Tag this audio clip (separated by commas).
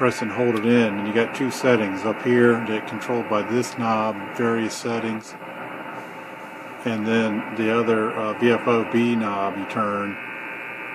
Speech